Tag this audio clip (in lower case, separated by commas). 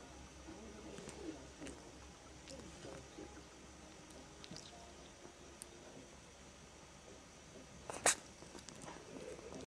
sneeze